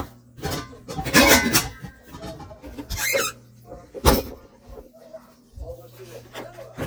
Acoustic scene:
kitchen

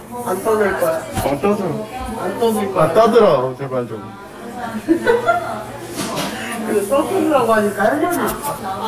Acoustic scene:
crowded indoor space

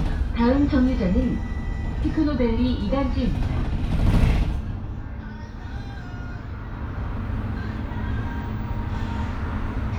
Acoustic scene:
bus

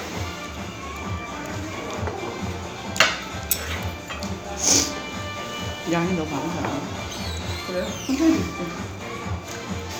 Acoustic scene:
restaurant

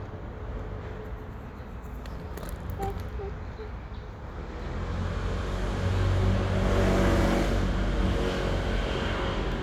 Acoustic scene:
street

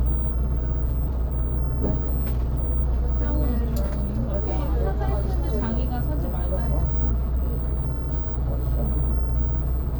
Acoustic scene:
bus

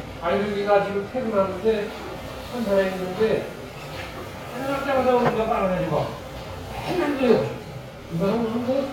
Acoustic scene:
restaurant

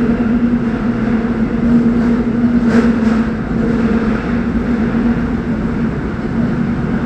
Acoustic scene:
subway train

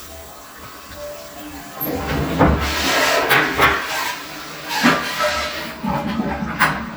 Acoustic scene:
restroom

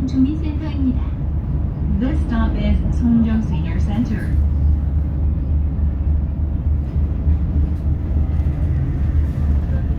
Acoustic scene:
bus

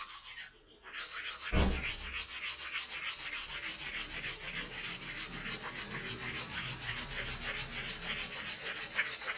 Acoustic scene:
restroom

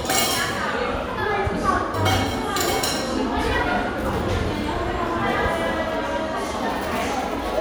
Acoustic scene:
crowded indoor space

